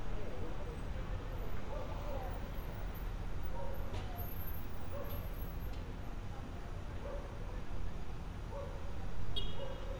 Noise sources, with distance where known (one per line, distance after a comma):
dog barking or whining, far